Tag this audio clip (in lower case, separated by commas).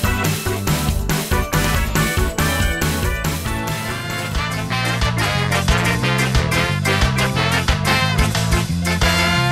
music, pop